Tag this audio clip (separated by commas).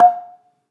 Percussion, Musical instrument, Music, Mallet percussion, xylophone